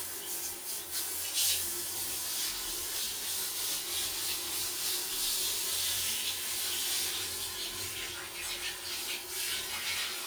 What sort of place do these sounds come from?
restroom